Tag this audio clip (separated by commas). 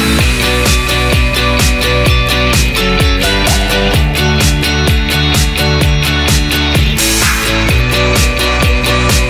Music